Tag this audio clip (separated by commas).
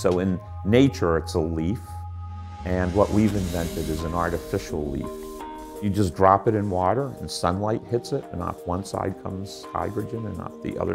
Music, Speech